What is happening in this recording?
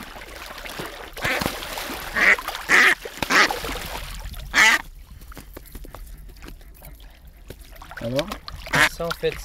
Water flowing and ducks quacking, followed by a man speaking